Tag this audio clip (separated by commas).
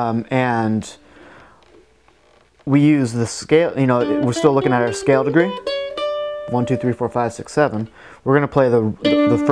Plucked string instrument, Guitar, Speech, Jazz, Music, Mandolin, Musical instrument